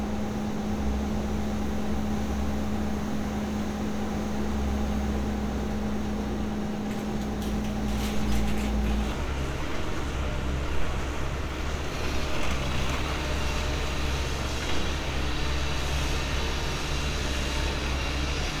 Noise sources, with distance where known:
engine of unclear size

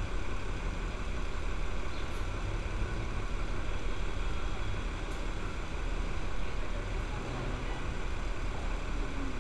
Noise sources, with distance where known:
engine of unclear size

